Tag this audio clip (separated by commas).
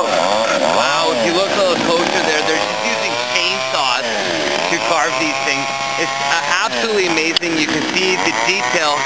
Chainsaw, Speech